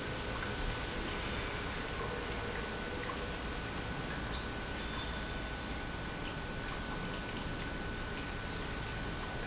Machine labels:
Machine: pump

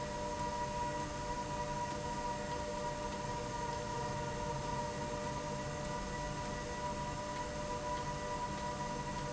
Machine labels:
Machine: slide rail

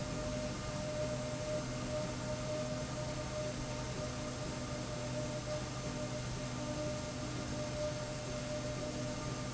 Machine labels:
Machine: slide rail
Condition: normal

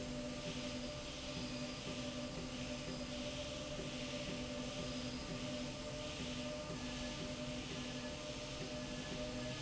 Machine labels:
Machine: slide rail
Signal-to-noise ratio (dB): 0 dB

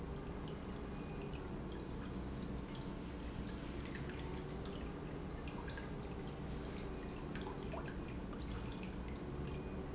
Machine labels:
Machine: pump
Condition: normal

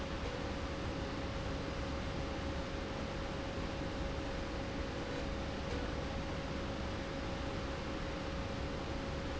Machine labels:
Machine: slide rail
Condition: normal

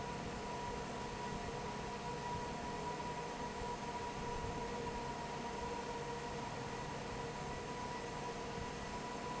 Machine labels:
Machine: fan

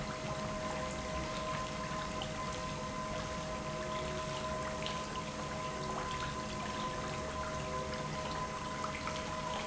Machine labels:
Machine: pump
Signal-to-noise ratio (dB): -6 dB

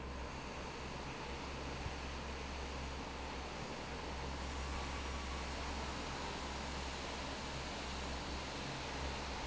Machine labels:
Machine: fan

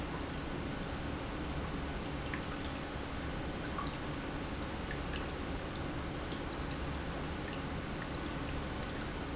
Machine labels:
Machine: pump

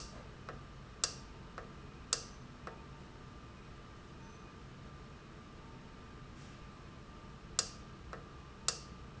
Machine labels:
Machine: valve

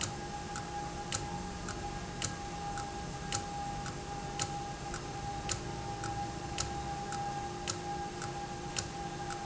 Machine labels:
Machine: valve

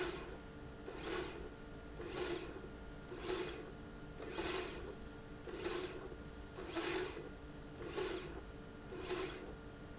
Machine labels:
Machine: slide rail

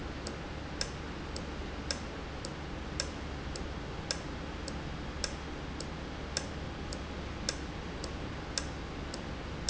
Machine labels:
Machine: valve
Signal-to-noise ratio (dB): -6 dB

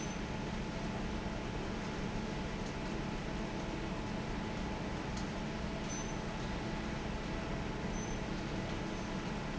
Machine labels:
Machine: fan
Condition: normal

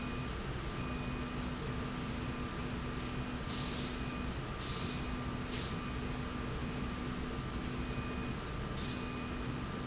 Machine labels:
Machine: slide rail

